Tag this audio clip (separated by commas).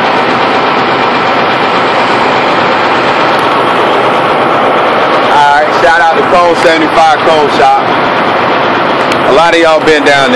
Motor vehicle (road), Speech, Vehicle